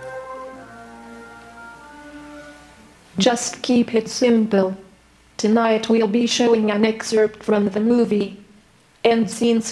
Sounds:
Speech, Music

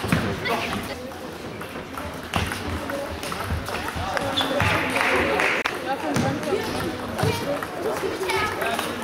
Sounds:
Speech, inside a large room or hall

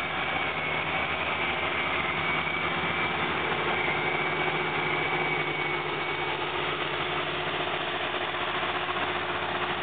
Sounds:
Engine, Vibration, Vehicle, outside, rural or natural

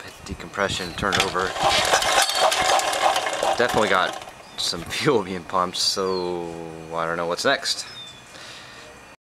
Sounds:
Engine, Speech

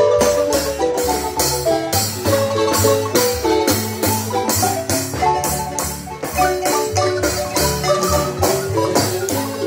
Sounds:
Music

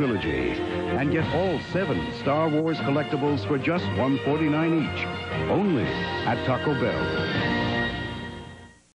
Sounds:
Speech, Music

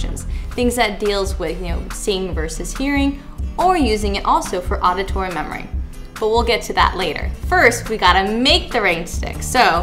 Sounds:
Speech, Music

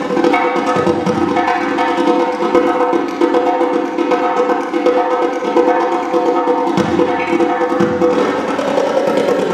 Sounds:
Music, Wood block

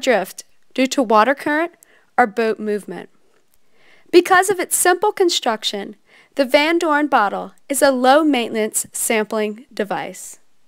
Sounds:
Speech

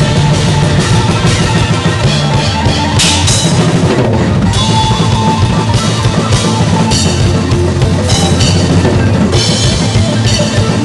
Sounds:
Drum roll, Drum kit, Bass drum, Percussion, Drum, Rimshot, Snare drum

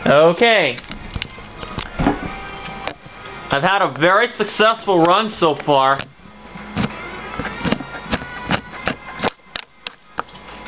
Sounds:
Speech, Music

